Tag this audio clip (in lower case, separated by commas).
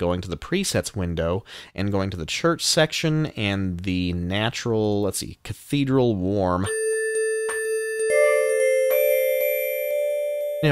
speech, musical instrument, music